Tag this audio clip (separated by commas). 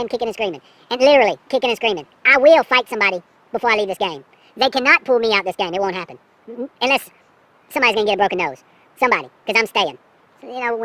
Speech